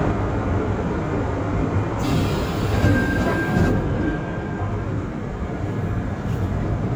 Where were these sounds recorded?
on a subway train